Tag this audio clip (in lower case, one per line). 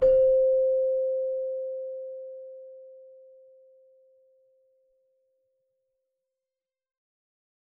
keyboard (musical)
music
musical instrument